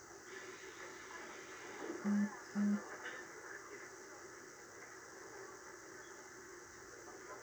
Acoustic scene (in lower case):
subway train